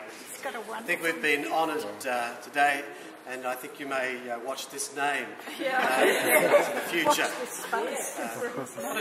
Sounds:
chatter
speech

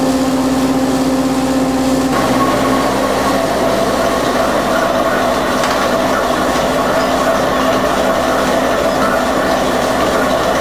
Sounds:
rail transport
train

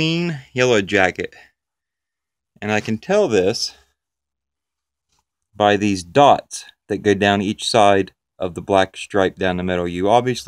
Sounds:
speech

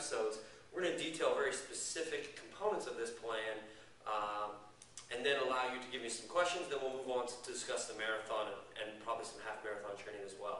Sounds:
speech
inside a large room or hall

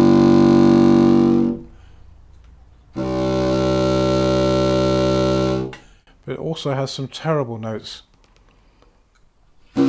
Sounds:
playing bassoon

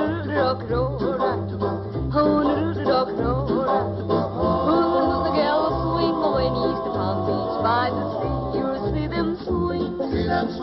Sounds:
music
dance music
steel guitar

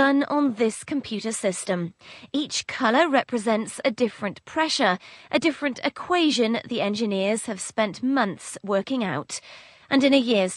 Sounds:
speech

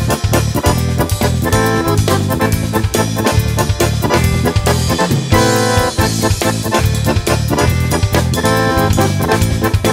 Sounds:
music

